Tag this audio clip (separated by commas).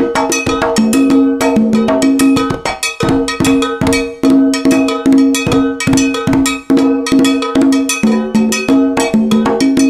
playing congas